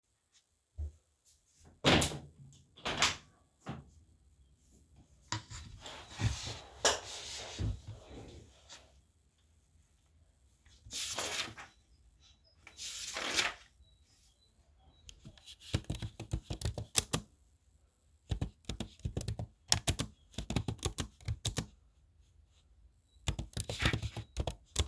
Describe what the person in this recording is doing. I opened the window, sat down, opened my book, started typing